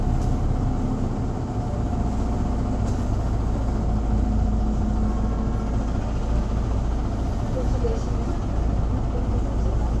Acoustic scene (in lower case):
bus